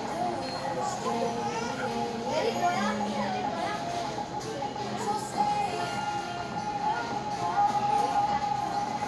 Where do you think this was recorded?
in a crowded indoor space